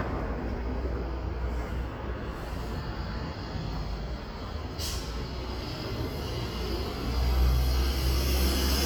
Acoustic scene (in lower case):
street